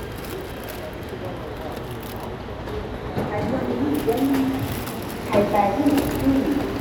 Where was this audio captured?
in a subway station